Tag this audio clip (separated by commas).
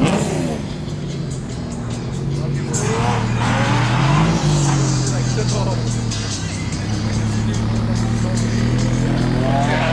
Vehicle, Race car, Car, Music, Speech, outside, urban or man-made